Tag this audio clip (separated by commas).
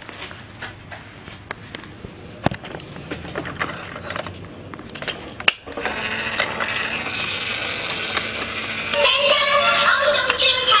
Vehicle